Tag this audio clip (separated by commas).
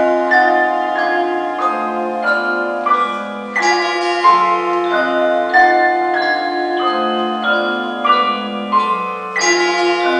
Music, Orchestra